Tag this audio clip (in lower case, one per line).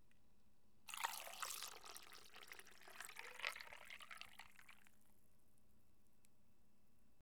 fill (with liquid)
liquid